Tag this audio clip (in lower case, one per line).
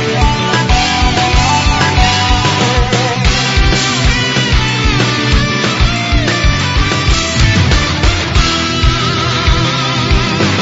music
pop music